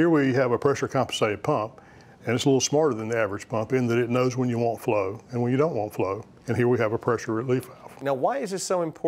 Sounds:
speech

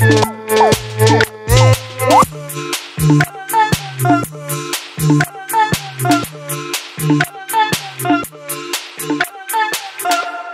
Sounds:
music

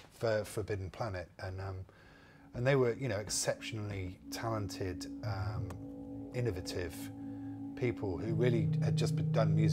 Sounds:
speech, music

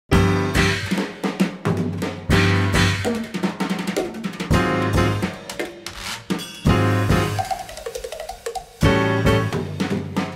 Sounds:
drum kit, snare drum, drum roll, percussion, bass drum, drum, rimshot

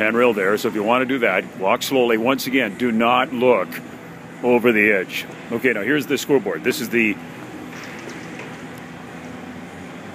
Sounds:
speech

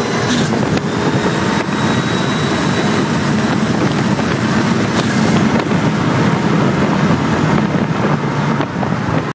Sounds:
vehicle, motor vehicle (road), car

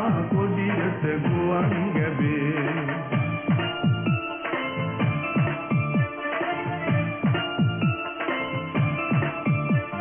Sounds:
music, background music

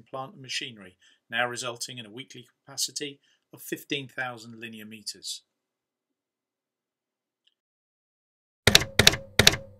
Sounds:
speech

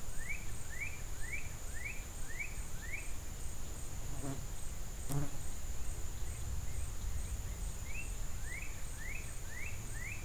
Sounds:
animal, insect

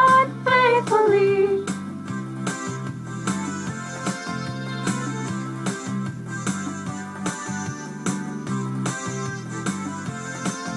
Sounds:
soundtrack music, funny music, music, independent music

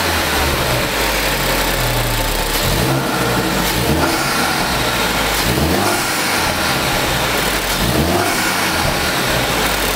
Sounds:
medium engine (mid frequency), engine, vehicle, vroom

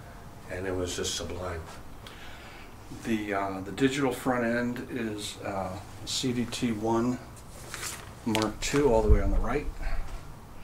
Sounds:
speech

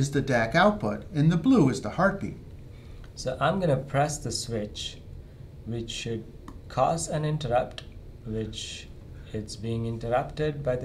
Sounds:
speech

